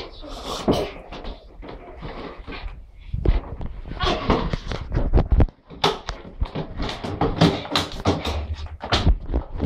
A door is heard creaking then being manipulated